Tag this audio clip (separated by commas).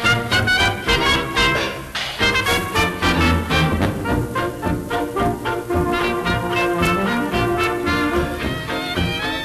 Music